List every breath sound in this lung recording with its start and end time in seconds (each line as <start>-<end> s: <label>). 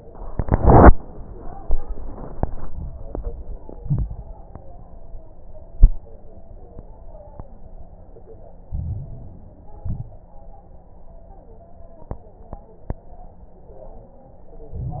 3.78-4.24 s: exhalation
3.78-4.24 s: crackles
8.66-9.80 s: inhalation
8.66-9.80 s: crackles
9.82-10.34 s: exhalation
9.82-10.34 s: crackles
14.74-15.00 s: inhalation
14.74-15.00 s: crackles